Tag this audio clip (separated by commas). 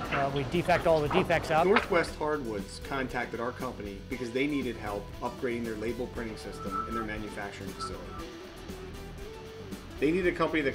Music, Speech